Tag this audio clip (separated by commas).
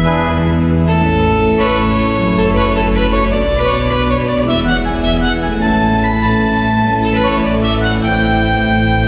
Music, Organ